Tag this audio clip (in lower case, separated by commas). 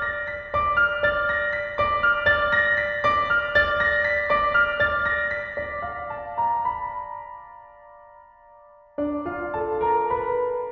music